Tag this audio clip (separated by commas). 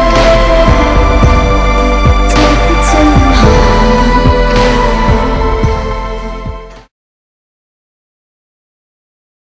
Music